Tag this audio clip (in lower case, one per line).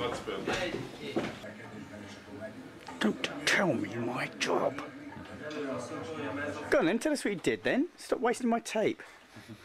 speech